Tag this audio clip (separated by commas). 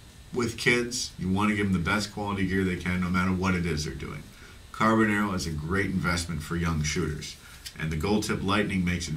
Speech